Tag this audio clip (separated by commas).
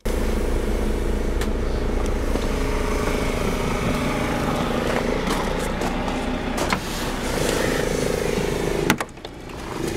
Vehicle, Bus